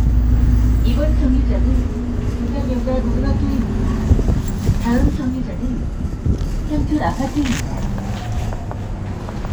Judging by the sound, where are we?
on a bus